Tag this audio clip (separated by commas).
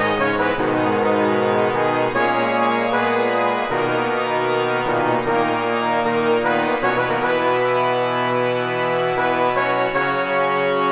Musical instrument, Music